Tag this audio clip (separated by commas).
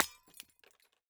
Glass, Shatter